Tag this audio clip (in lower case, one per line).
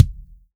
drum
bass drum
music
musical instrument
percussion